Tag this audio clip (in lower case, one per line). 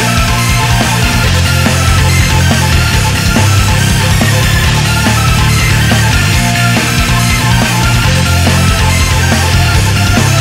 blues
music
background music
rhythm and blues